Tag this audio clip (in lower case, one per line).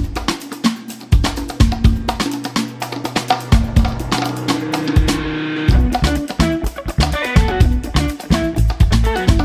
music